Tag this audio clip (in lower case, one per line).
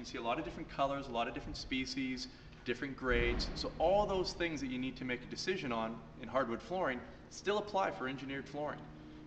speech